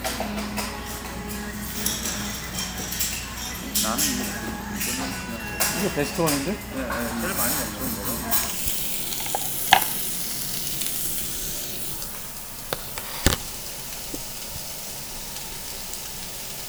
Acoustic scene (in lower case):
restaurant